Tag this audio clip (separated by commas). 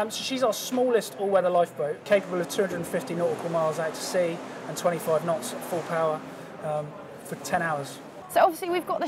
Speech, Water vehicle, speedboat, Vehicle